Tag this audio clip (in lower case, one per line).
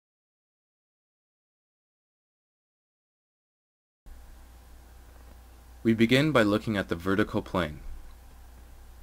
speech